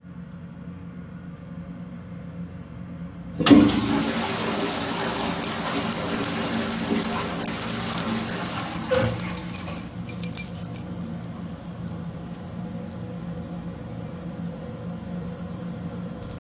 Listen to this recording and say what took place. I placed the recording device on the bathroom counter. I flushed the toilet and shortly after began jangling my keys clearly close to the device. The keychain sounds overlapped with the tail end of the toilet flush. Both sounds were clearly audible during the shared interval.